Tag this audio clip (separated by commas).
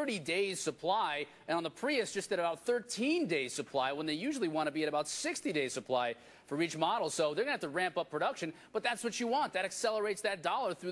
Speech